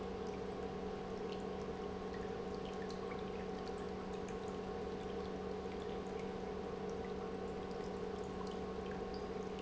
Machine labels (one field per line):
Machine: pump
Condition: normal